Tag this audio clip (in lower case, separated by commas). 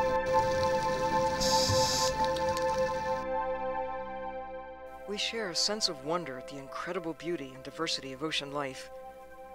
music, speech